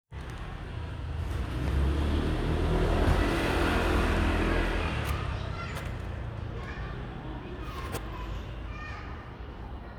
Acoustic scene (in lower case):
residential area